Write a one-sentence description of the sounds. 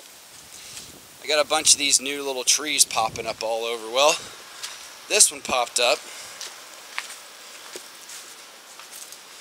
Leaves rustling as a man speaks